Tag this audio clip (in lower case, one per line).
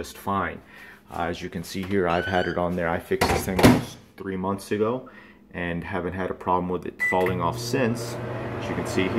microwave oven
speech